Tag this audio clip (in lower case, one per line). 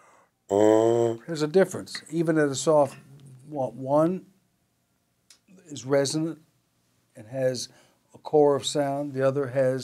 speech